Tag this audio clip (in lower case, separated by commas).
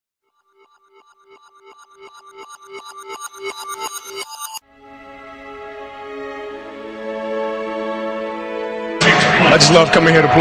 speech, music, inside a large room or hall